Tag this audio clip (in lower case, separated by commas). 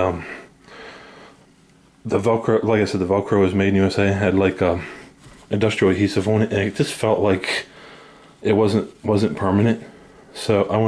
speech